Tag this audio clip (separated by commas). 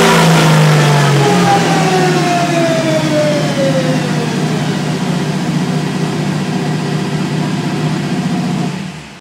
Car, Vehicle